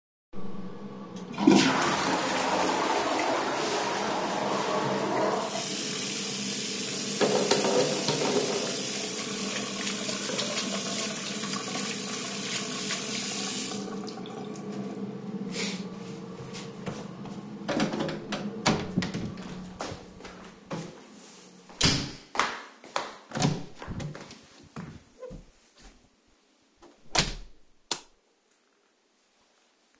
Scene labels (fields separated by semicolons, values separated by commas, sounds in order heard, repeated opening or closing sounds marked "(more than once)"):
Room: bathroom, hallway; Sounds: toilet flushing, running water, door (more than once), footsteps, light switch